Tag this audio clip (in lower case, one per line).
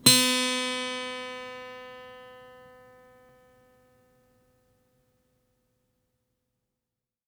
plucked string instrument
musical instrument
acoustic guitar
music
guitar